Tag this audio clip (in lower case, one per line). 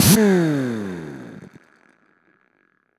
tools